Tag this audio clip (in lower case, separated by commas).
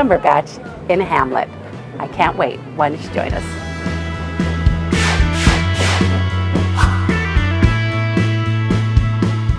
speech, vehicle, music